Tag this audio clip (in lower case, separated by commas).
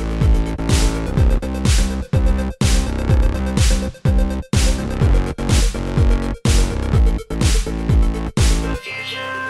disco, music